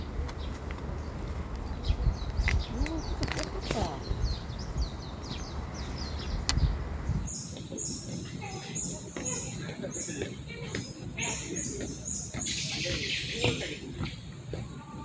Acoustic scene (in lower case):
park